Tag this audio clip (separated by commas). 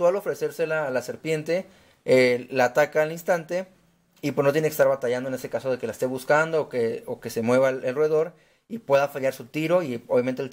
inside a small room, Speech